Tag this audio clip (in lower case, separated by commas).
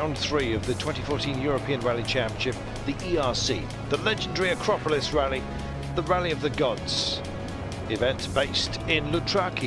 music, speech